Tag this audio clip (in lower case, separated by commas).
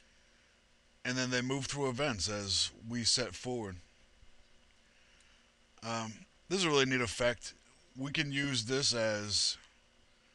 speech